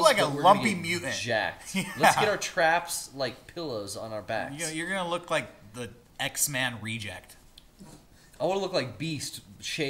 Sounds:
inside a small room, Speech

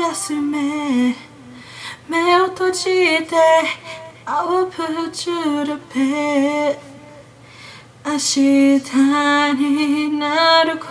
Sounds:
Lullaby

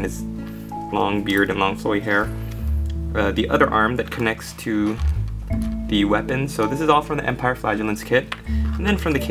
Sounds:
Speech, Music

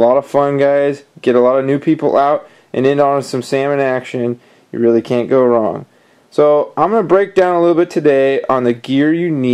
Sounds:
Speech

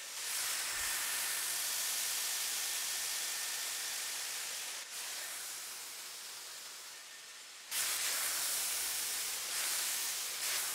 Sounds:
hair dryer drying

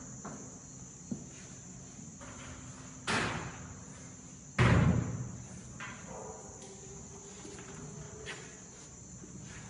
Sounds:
door slamming

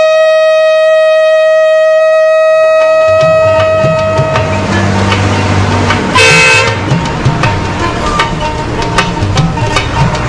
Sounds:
outside, rural or natural, inside a small room, Music

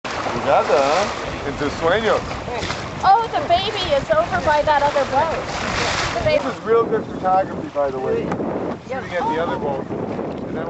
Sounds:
Vehicle, Speech, Water vehicle

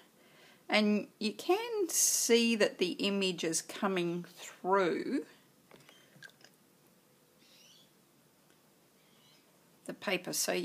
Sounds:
inside a small room, Speech

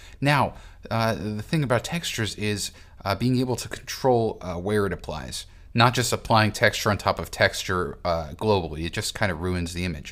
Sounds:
Speech

